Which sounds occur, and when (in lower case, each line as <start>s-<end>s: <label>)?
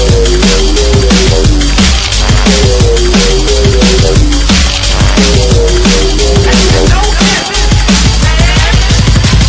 0.0s-9.4s: music
1.7s-2.3s: generic impact sounds
4.5s-4.9s: generic impact sounds
6.9s-7.8s: man speaking
8.2s-8.9s: man speaking